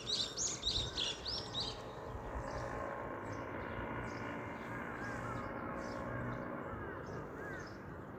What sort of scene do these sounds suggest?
residential area